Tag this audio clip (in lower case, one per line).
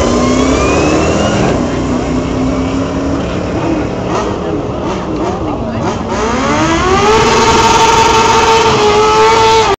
speech